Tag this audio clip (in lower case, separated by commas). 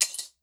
glass, shatter